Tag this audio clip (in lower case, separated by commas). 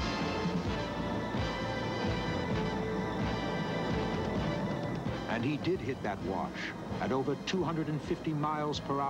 speech, music